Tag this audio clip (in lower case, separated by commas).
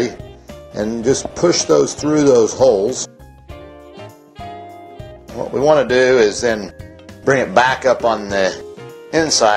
speech, music